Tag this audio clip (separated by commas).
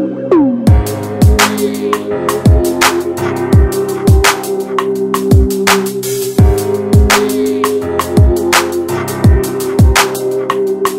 Music